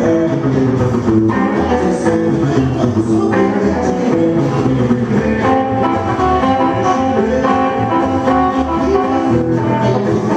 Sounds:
Music, Guitar, Strum, Plucked string instrument, Musical instrument

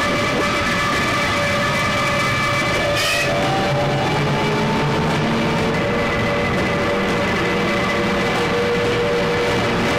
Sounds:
Vehicle

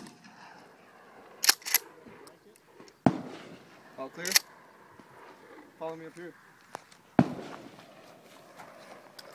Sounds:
Speech, outside, rural or natural

